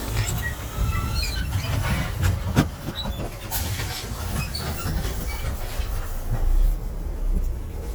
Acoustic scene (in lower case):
bus